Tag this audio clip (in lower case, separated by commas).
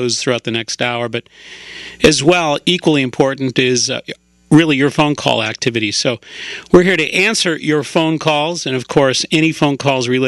speech, radio